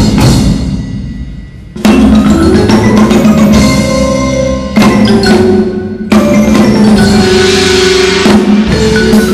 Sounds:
marimba, glockenspiel, mallet percussion

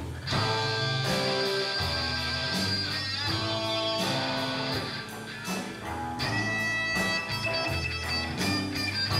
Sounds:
music

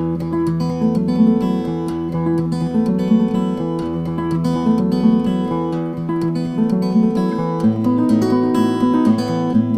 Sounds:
music, acoustic guitar, plucked string instrument, guitar, musical instrument, strum

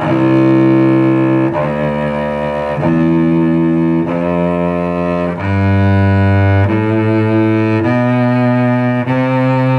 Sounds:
playing cello

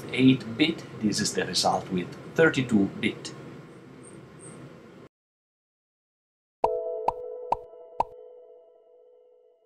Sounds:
speech, inside a small room, sonar

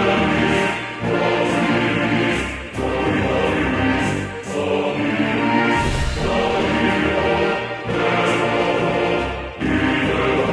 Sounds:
music, soundtrack music

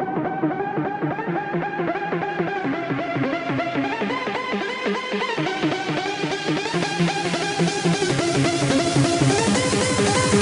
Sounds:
electronic music, techno, music

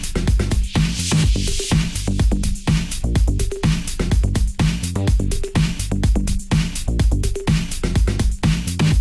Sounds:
music, disco

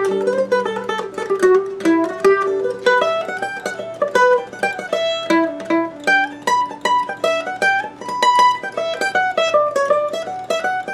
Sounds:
musical instrument, music, mandolin, plucked string instrument

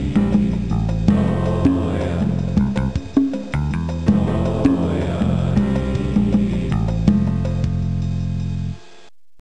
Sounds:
background music, music

